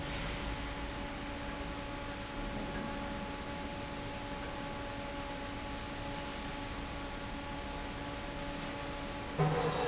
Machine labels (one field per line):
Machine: fan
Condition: normal